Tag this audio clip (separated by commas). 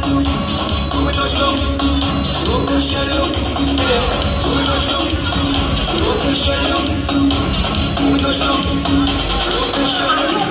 Music